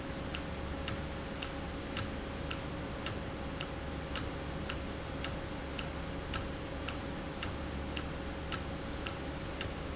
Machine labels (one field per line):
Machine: valve